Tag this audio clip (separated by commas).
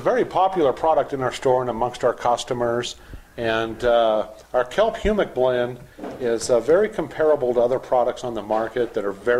Speech